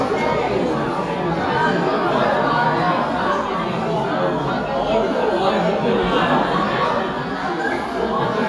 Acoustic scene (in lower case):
restaurant